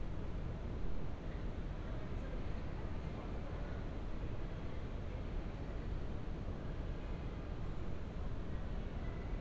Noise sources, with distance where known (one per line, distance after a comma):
unidentified human voice, far